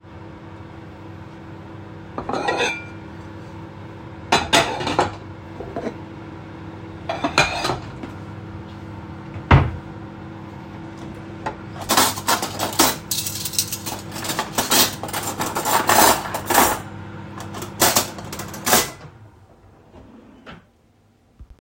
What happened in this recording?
While the microwave was working, I put away some plates, closed the kitchen cabinet and put away some cutlery.